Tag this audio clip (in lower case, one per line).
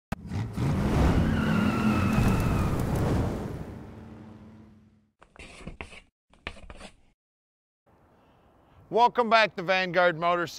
speech
outside, urban or man-made